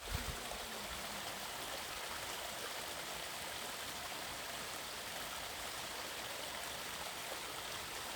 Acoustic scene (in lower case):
park